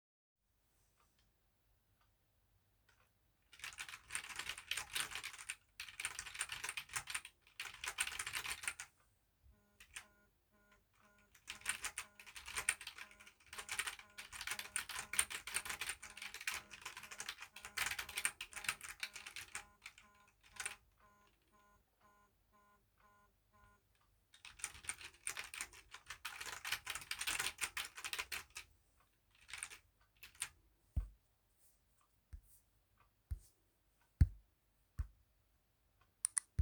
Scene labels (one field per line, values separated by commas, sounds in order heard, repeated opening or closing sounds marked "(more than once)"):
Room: office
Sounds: keyboard typing